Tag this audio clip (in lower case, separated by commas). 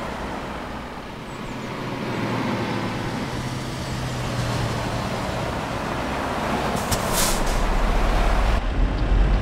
truck, car